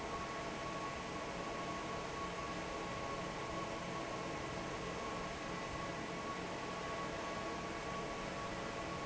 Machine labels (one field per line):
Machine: fan